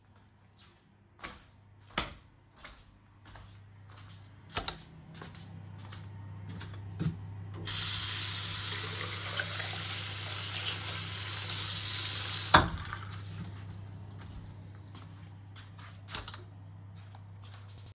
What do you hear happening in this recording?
I went to the bathroom, turned on the lights,washed my hands, walked out and stopped the lights.